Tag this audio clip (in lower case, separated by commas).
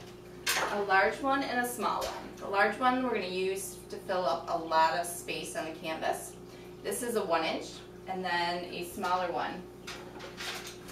raindrop